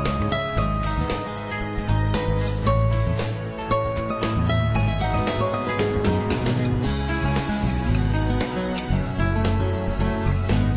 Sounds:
Music

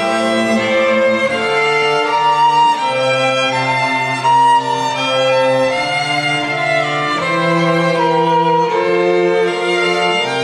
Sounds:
Musical instrument, fiddle, Music

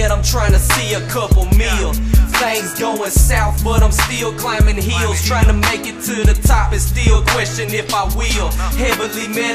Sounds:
Jazz, Music

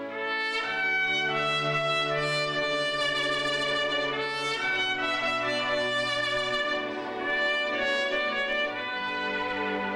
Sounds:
Music, Orchestra

